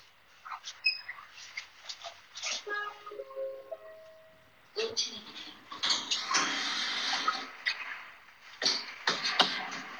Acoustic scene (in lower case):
elevator